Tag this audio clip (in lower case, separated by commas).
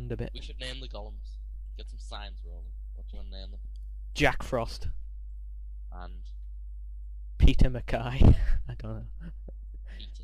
speech